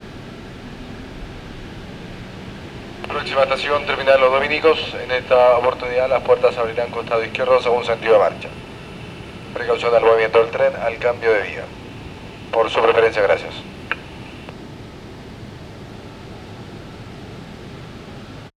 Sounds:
Subway, Vehicle, Rail transport

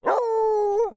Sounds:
Dog, Animal, pets

